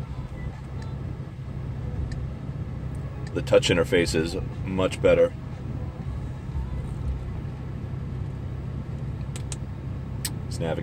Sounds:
speech

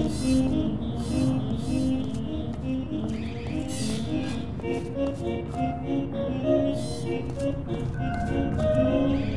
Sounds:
music

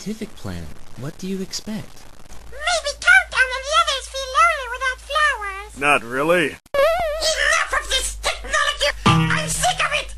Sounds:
speech

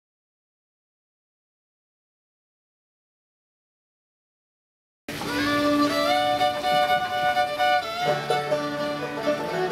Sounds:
bowed string instrument
pizzicato
fiddle

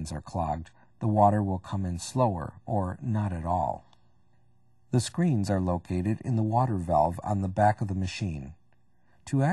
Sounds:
speech

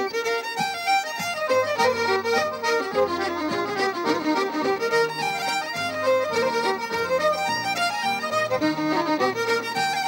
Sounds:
music

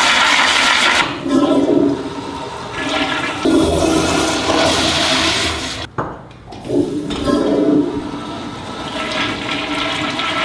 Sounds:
toilet flushing

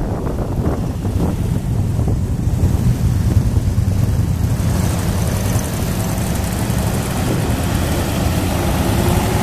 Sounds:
car
motor vehicle (road)
vehicle
traffic noise

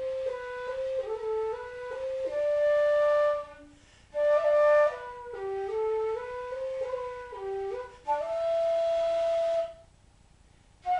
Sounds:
music

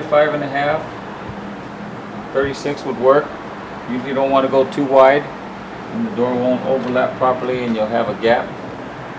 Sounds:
speech

